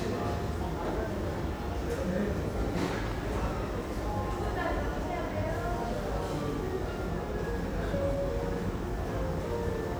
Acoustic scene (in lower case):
crowded indoor space